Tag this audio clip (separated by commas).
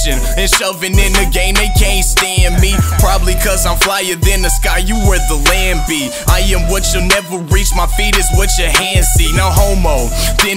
Independent music, Dance music, Music, Blues